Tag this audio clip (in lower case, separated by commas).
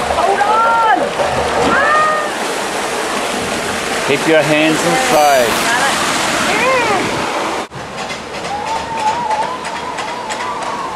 slosh, outside, rural or natural, speech, sloshing water